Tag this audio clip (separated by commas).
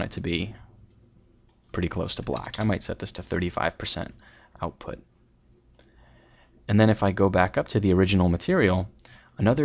Clicking, Speech